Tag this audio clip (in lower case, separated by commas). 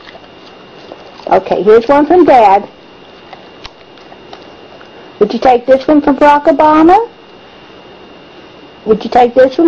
speech